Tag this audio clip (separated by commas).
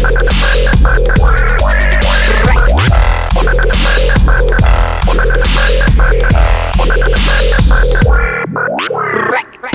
Music, Dubstep